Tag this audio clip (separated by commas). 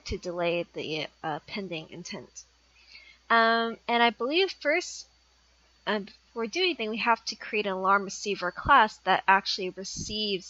Speech